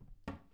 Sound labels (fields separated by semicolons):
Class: cupboard; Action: closing; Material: wooden